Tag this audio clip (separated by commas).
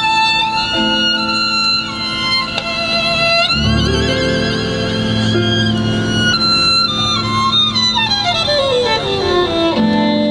Music